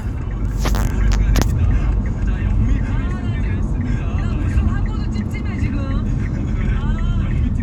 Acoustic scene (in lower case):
car